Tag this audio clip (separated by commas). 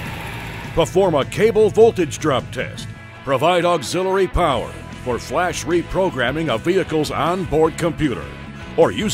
Speech, Music